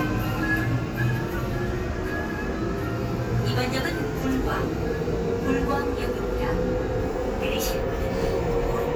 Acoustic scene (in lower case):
subway train